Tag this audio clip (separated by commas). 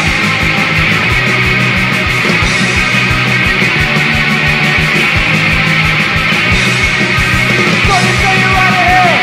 Yell, Punk rock, Music, Heavy metal